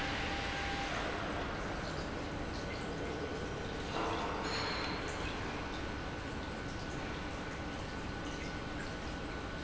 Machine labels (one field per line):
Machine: pump